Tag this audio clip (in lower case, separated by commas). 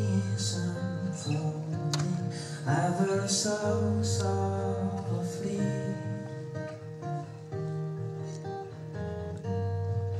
music